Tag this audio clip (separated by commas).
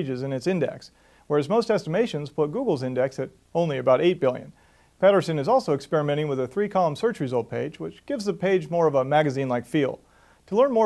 Speech